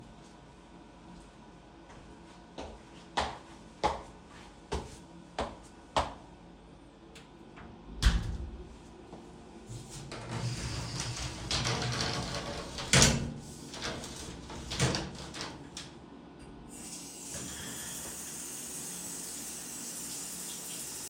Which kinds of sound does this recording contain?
footsteps, door, running water